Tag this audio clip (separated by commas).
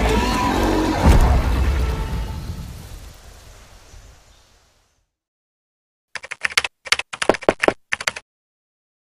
outside, rural or natural, Music